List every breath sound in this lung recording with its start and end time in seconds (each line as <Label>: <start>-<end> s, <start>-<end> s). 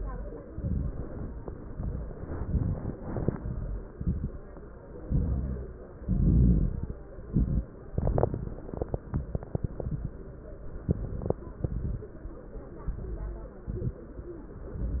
Inhalation: 0.00-0.46 s, 1.45-2.22 s, 3.01-3.76 s, 5.05-5.85 s, 7.22-7.71 s, 10.87-11.42 s, 12.88-13.62 s, 14.60-15.00 s
Exhalation: 0.48-1.37 s, 2.21-2.96 s, 3.94-4.81 s, 6.00-6.93 s, 7.91-8.61 s, 11.61-12.16 s, 13.66-14.15 s
Crackles: 0.00-0.46 s, 0.48-1.37 s, 1.45-2.20 s, 2.21-2.96 s, 3.01-3.76 s, 3.94-4.81 s, 5.05-5.85 s, 6.00-6.93 s, 7.22-7.71 s, 7.91-8.61 s, 10.87-11.42 s, 11.61-12.16 s, 12.88-13.62 s, 13.66-14.15 s, 14.60-15.00 s